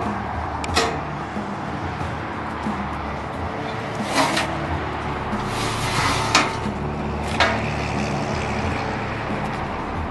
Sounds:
Music

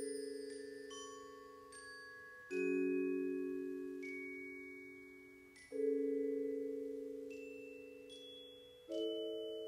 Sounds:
xylophone, Mallet percussion, Glockenspiel

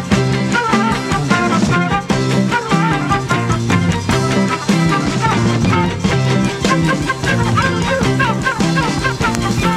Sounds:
Music

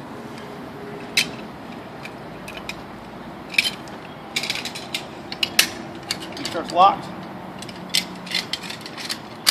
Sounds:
Mechanisms, Pulleys, Ratchet, Gears

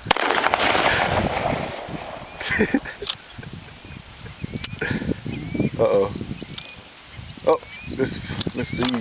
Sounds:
Speech

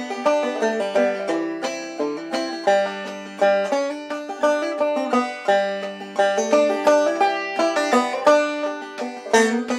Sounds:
playing banjo, Music, Banjo

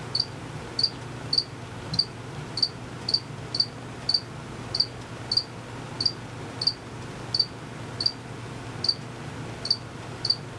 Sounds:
cricket chirping

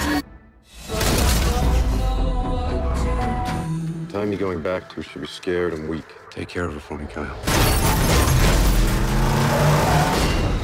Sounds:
Music, Speech

